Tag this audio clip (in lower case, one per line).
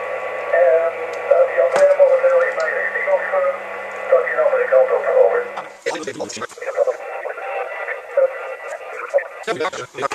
radio
speech